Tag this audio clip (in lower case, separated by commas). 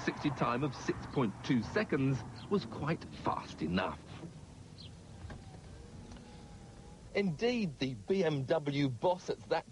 car, speech, car passing by, vehicle